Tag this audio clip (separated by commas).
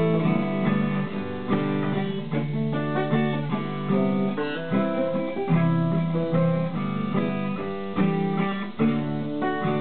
Electric guitar, Music, Guitar, Plucked string instrument, Musical instrument, Strum